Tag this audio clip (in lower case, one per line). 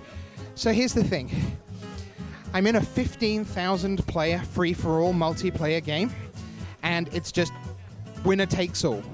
speech
music